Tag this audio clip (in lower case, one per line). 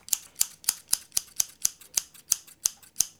scissors
domestic sounds